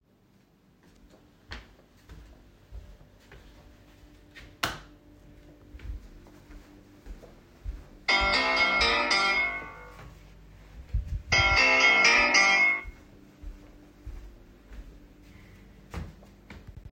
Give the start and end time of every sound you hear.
[0.00, 4.59] footsteps
[4.59, 5.68] light switch
[5.70, 16.92] footsteps
[8.09, 13.42] phone ringing

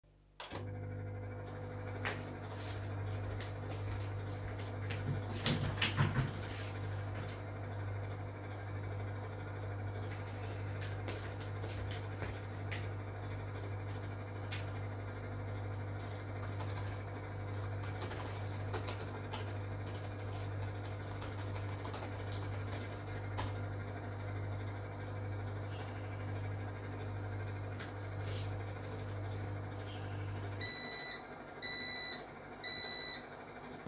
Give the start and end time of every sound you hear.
[0.32, 33.38] microwave
[1.92, 5.01] footsteps
[4.79, 6.36] window
[10.97, 12.83] footsteps
[16.07, 23.58] keyboard typing

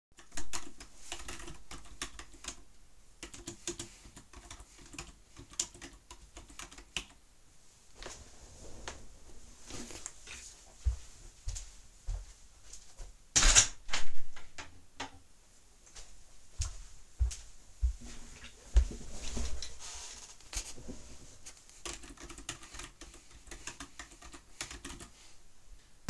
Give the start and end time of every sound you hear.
[0.28, 7.14] keyboard typing
[10.80, 12.33] footsteps
[13.36, 15.13] window
[16.56, 19.06] footsteps
[21.83, 25.21] keyboard typing

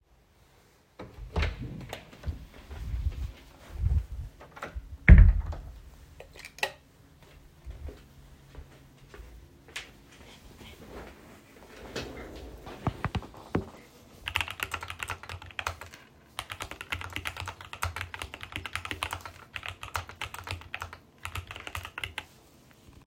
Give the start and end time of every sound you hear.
[1.14, 2.34] door
[4.58, 5.63] door
[6.20, 6.89] light switch
[7.42, 11.51] footsteps
[14.21, 22.29] keyboard typing

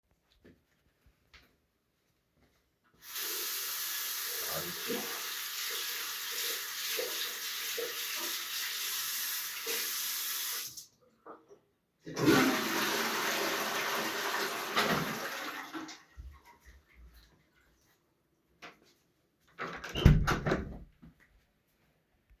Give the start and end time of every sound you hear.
[3.09, 10.84] running water
[12.05, 16.04] toilet flushing
[19.46, 20.86] door

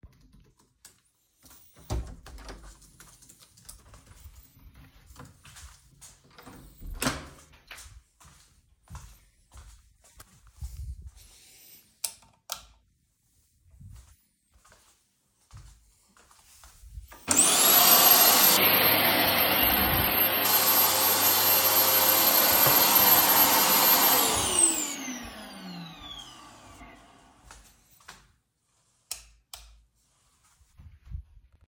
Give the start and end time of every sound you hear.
[0.04, 1.49] keyboard typing
[1.66, 4.11] door
[3.03, 4.36] keyboard typing
[4.29, 6.88] footsteps
[6.62, 8.15] door
[8.26, 11.86] footsteps
[11.86, 12.79] light switch
[13.56, 17.04] footsteps
[17.15, 28.35] vacuum cleaner
[27.89, 28.33] footsteps
[28.85, 29.86] light switch

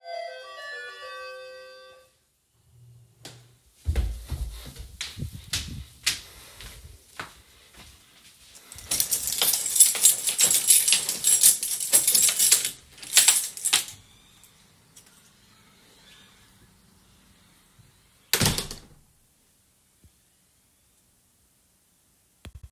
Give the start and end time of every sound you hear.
[0.00, 2.16] bell ringing
[3.21, 8.07] footsteps
[8.72, 13.98] keys
[18.29, 18.87] door

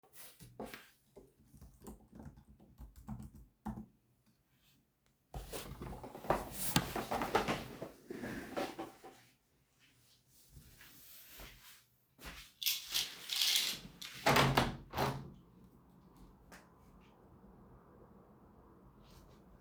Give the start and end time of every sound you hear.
[1.05, 4.05] keyboard typing
[10.29, 12.57] footsteps
[14.19, 15.24] window

